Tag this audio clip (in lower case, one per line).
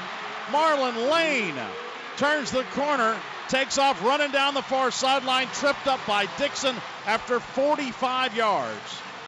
speech